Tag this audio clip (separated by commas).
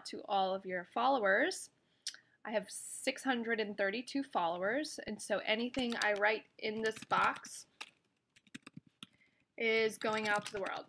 Speech